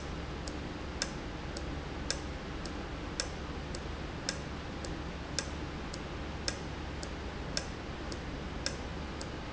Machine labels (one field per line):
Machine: valve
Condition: normal